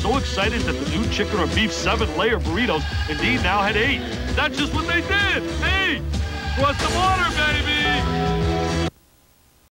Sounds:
music, speech

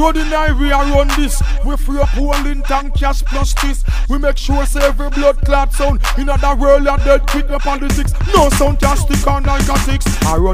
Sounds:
hip hop music, music

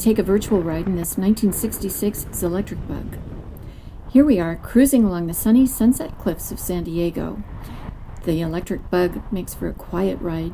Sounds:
speech

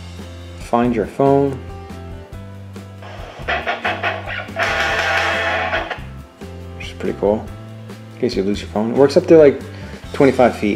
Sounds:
inside a small room, music, speech

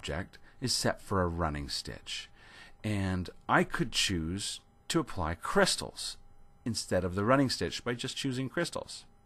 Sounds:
speech

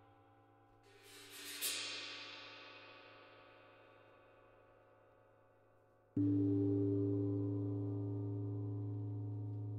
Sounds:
music

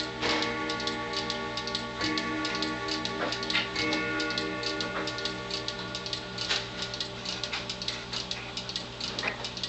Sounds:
tick-tock, tick

